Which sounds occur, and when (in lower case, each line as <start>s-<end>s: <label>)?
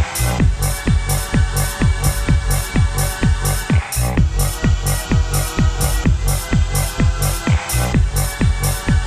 0.0s-9.0s: music